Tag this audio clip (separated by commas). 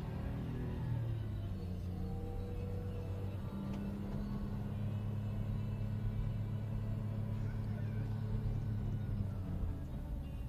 Music